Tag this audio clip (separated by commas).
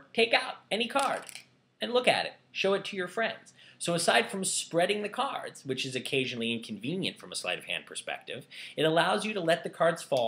Speech